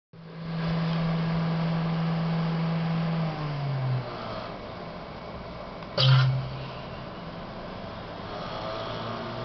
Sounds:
inside a small room

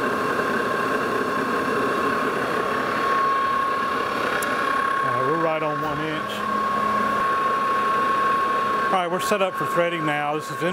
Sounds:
lathe spinning

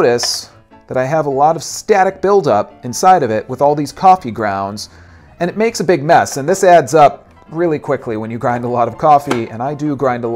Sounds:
music, speech

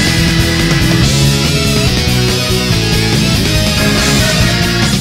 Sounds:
music

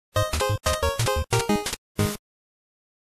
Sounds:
music

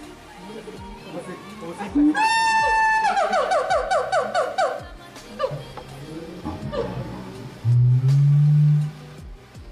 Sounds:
gibbon howling

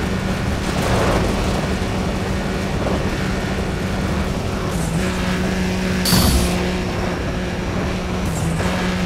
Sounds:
car, vehicle, skidding

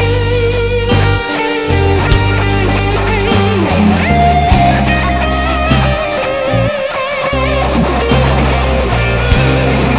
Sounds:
music, guitar, progressive rock

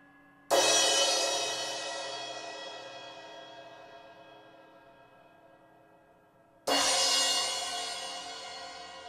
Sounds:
playing cymbal

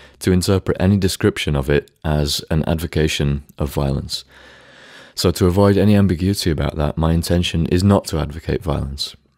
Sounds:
speech

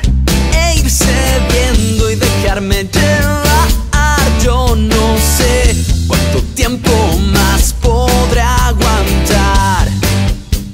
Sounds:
rhythm and blues, blues, music

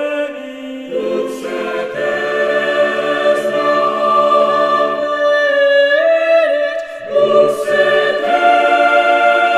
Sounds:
music

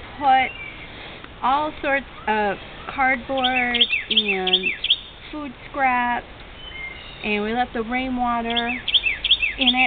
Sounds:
outside, rural or natural, speech

